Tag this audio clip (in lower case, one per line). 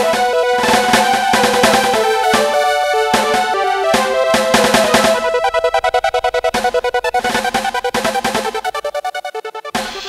electronic music
trance music
music